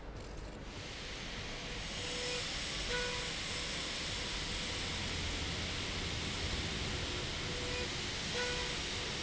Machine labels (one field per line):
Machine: slide rail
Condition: normal